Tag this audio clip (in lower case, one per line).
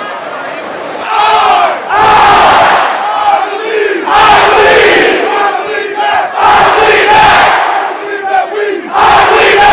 speech